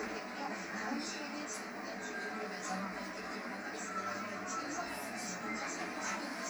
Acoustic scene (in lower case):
bus